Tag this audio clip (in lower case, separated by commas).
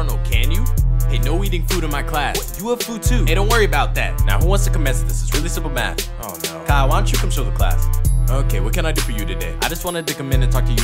rapping